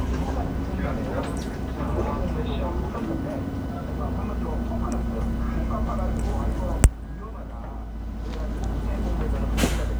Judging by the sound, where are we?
on a bus